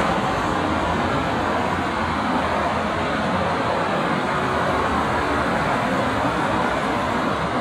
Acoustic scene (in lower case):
street